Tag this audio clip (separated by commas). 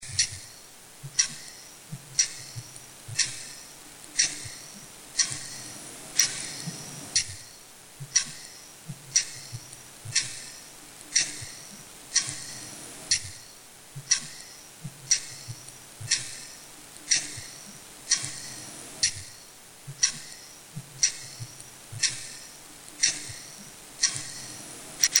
Tick-tock, Clock, Mechanisms